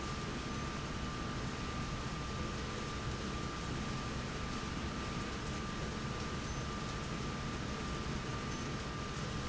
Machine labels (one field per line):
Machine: slide rail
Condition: normal